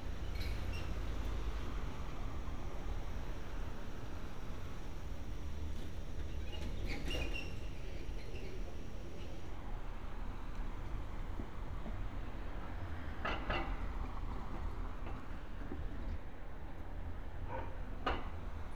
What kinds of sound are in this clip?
non-machinery impact